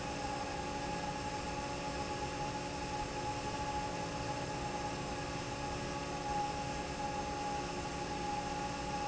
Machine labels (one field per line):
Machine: fan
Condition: normal